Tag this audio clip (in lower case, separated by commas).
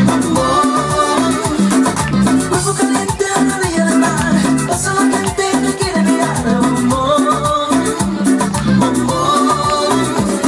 music